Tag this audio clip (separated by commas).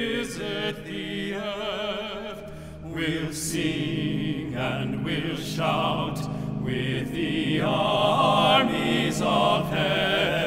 Singing, Music, Choir